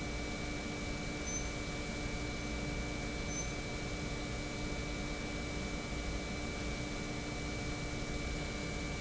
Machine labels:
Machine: pump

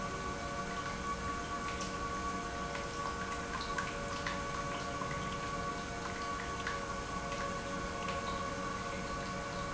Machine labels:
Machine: pump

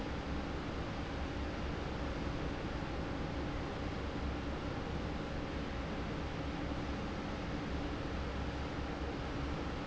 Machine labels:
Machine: fan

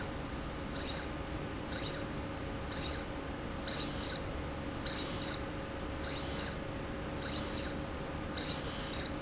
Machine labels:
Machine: slide rail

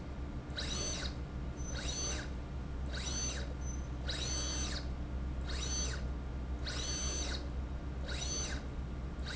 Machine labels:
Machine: slide rail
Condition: abnormal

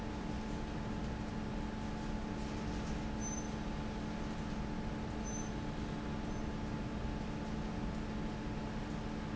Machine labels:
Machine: fan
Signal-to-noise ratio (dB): -6 dB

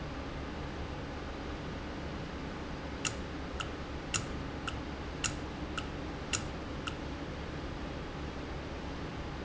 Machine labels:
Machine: valve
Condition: normal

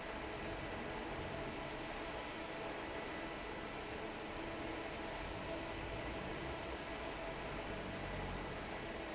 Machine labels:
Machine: fan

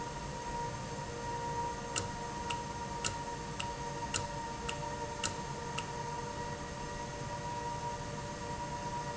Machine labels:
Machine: valve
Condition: normal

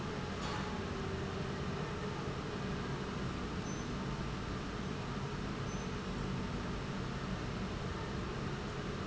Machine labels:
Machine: pump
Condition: normal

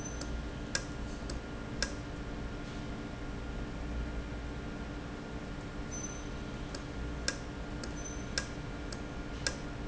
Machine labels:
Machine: valve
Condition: normal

